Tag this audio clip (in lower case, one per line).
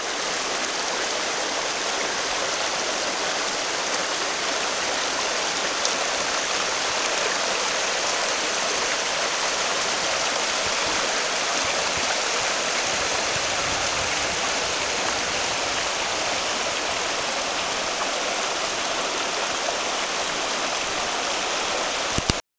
water
stream